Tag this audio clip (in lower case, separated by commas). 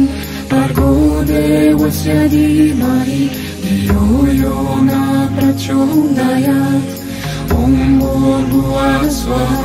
music, mantra